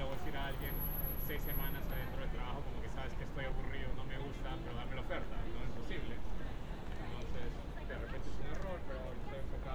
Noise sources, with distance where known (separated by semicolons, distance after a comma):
person or small group talking, near; unidentified human voice, far